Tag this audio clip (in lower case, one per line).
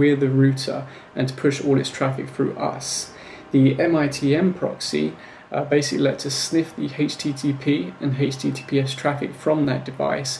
speech